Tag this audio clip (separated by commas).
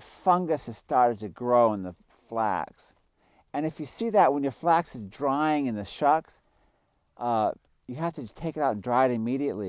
Speech